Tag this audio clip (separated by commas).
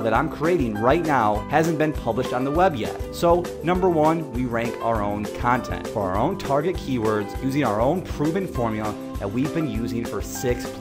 Speech, Music